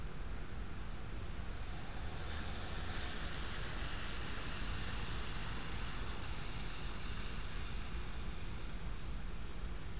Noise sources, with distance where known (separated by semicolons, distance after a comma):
engine of unclear size